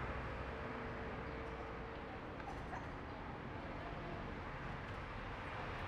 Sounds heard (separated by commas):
motorcycle engine accelerating, car, people talking, motorcycle, car wheels rolling